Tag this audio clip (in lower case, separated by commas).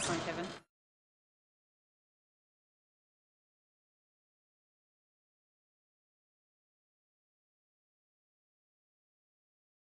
speech